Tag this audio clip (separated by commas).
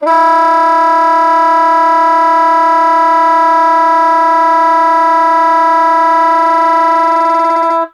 Music, Musical instrument, Wind instrument